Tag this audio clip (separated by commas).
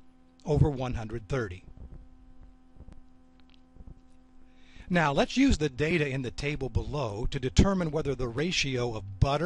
Speech